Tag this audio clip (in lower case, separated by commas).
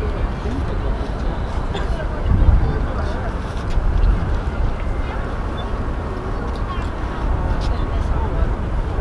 outside, urban or man-made, speech